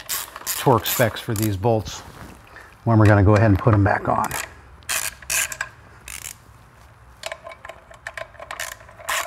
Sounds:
Speech

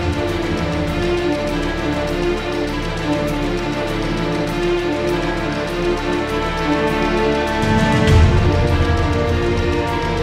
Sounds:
Background music, Music

